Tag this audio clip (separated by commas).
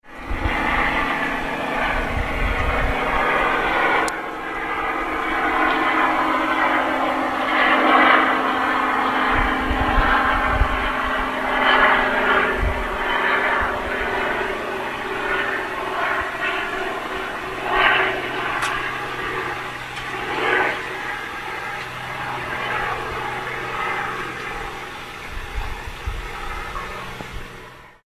Vehicle, Aircraft